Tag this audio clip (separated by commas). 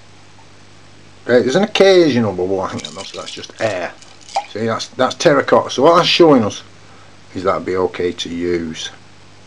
Drip, Speech, inside a small room